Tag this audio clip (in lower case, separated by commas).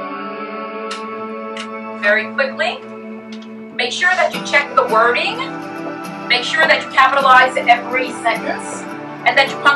music, speech